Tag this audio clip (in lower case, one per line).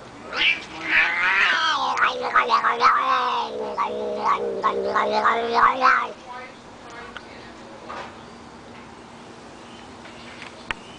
speech